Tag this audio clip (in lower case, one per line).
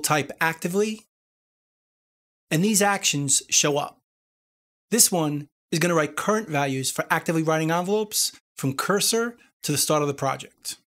speech